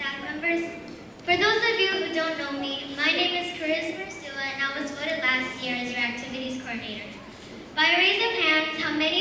Kid is giving a speech